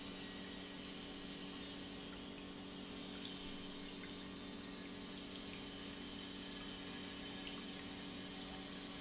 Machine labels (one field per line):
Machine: pump